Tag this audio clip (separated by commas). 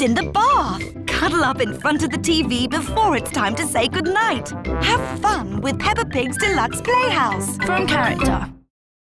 Music, Speech